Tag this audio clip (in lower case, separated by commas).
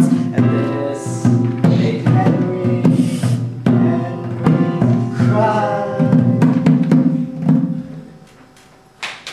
music, musical instrument